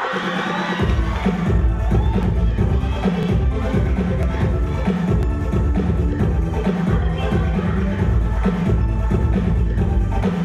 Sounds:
Music

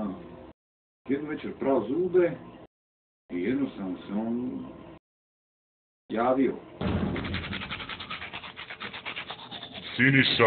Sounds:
inside a small room, Speech

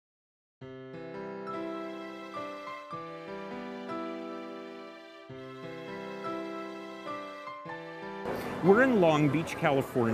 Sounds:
Speech, Music, Background music

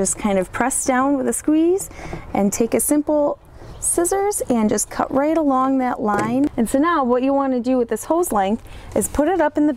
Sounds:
Speech

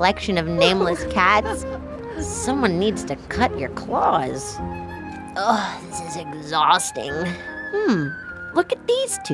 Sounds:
Speech, Music

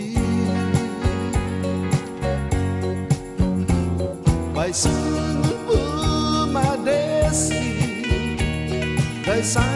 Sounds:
Music

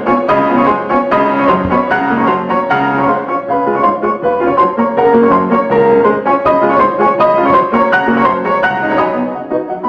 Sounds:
Music

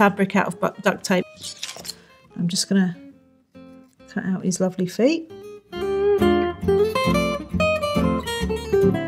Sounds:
Speech, Music, Acoustic guitar

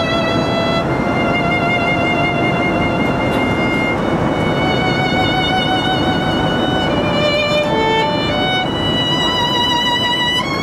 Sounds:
Music, fiddle, Musical instrument

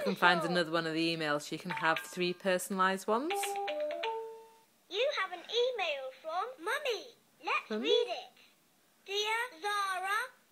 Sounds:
Speech, Music, inside a small room

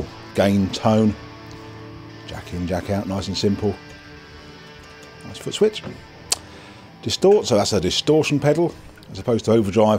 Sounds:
Music, Speech

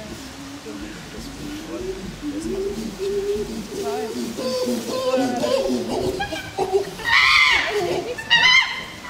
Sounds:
chimpanzee pant-hooting

